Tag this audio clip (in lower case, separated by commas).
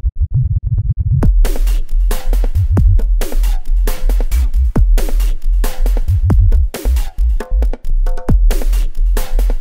dubstep, music, electronic music